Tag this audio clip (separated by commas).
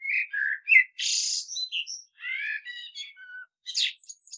Bird, Animal, Wild animals